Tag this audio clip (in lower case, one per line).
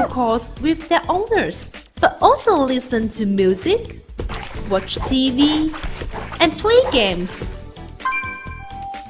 music
speech